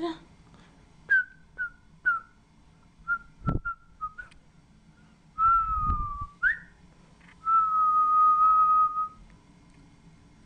Whistling consistently